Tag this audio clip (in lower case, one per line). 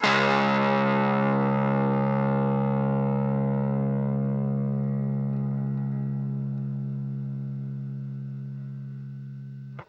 music
guitar
plucked string instrument
musical instrument